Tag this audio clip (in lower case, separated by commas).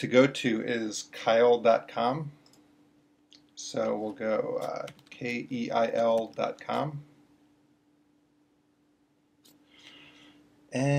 speech